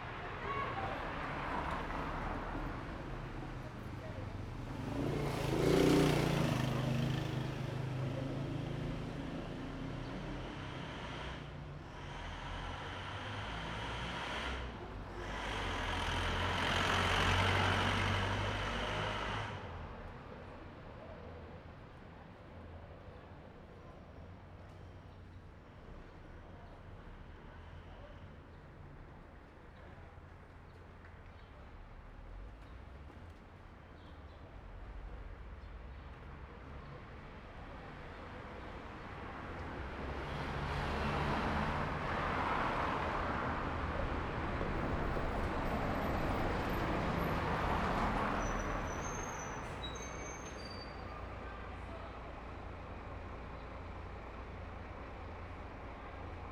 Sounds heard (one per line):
car wheels rolling
bus compressor
bus
bus engine idling
motorcycle
people talking
bus brakes
car engine accelerating
motorcycle engine accelerating
motorcycle engine idling
car